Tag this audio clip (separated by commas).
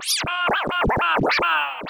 Music, Scratching (performance technique), Musical instrument